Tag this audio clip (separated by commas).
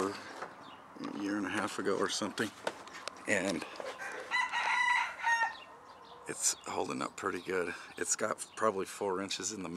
Bird, Fowl, Speech, outside, rural or natural